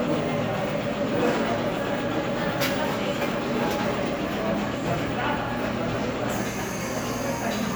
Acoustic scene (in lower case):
cafe